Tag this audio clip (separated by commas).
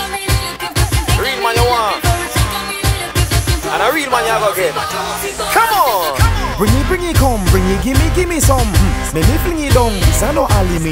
Reggae, Singing, Music